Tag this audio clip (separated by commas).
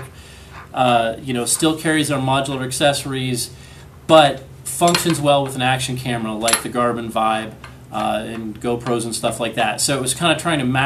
Speech